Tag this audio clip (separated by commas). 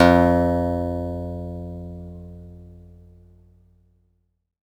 Plucked string instrument, Music, Acoustic guitar, Guitar, Musical instrument